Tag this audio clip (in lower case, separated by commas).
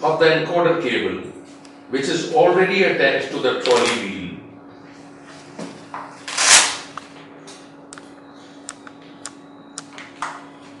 speech, inside a small room